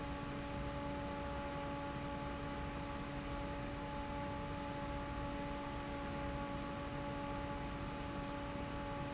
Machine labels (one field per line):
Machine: fan